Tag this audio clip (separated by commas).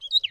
Animal, Wild animals, Bird